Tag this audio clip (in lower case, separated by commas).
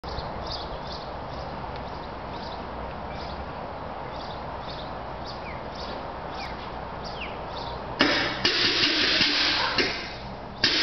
vehicle